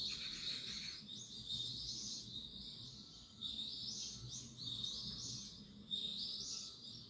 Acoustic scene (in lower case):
park